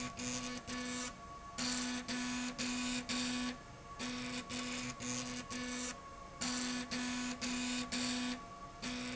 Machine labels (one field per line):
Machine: slide rail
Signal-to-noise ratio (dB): 6 dB